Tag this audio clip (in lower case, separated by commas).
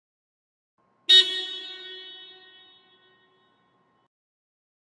vehicle, vehicle horn, alarm, motor vehicle (road), car